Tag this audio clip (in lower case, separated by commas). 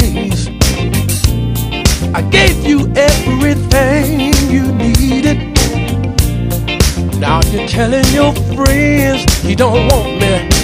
music